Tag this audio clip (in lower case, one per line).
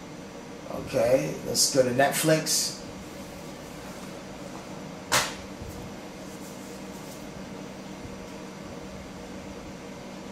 inside a small room
speech